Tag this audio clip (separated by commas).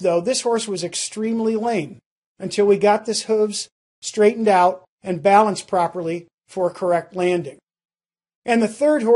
Speech